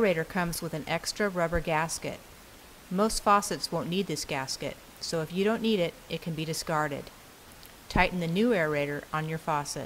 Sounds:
Speech

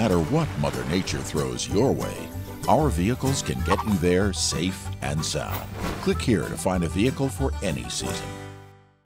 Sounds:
Music, Speech

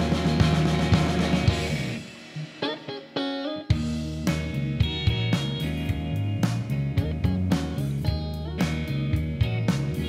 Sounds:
Music

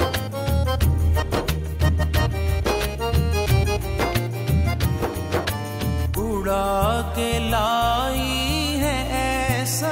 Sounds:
Music of Bollywood, Music

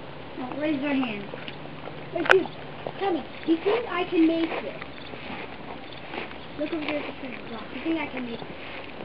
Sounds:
Speech

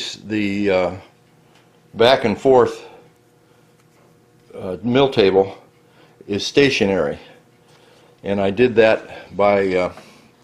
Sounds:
Speech

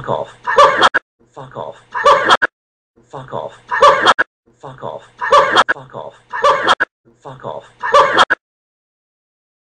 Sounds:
Speech, inside a large room or hall

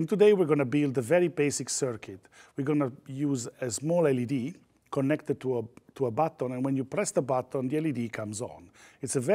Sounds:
Speech

